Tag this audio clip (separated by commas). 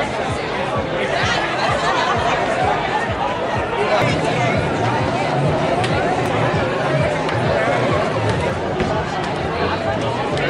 Music, Speech